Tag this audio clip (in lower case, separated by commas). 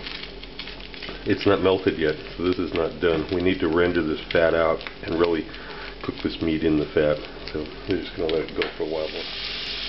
speech, inside a small room, frying (food)